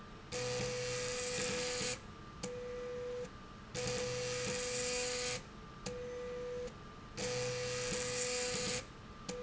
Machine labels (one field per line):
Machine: slide rail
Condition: abnormal